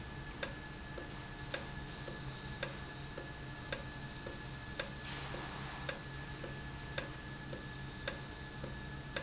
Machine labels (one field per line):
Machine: valve